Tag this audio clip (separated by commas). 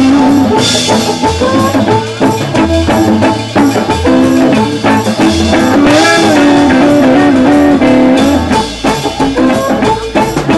Jazz, Music